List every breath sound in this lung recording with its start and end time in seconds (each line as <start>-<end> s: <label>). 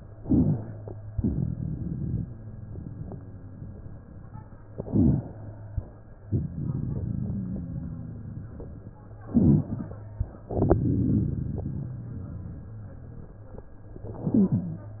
0.10-1.11 s: crackles
0.10-1.15 s: inhalation
1.14-2.29 s: crackles
1.14-3.54 s: exhalation
4.61-6.20 s: inhalation
6.19-8.90 s: crackles
6.19-8.94 s: exhalation
9.14-10.44 s: inhalation
9.14-10.44 s: crackles
10.47-13.66 s: exhalation
10.47-13.66 s: crackles
13.90-15.00 s: inhalation